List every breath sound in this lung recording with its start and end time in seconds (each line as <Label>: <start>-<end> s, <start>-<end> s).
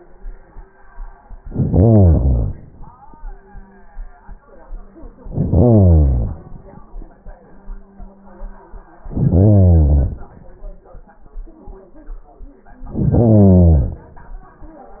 Inhalation: 1.34-2.69 s, 5.17-6.49 s, 9.07-10.34 s, 12.86-14.13 s